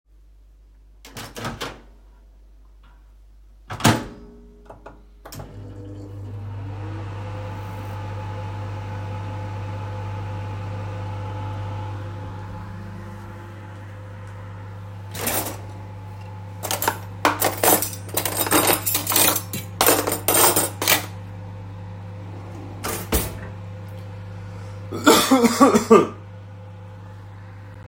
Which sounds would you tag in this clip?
microwave, cutlery and dishes, wardrobe or drawer